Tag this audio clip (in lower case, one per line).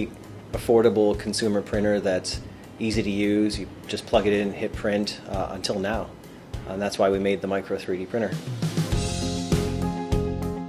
speech
music